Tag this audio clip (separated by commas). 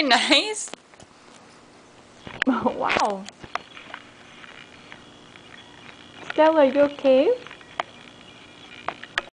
Speech